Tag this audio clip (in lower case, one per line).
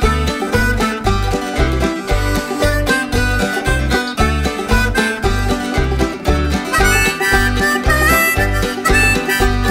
bluegrass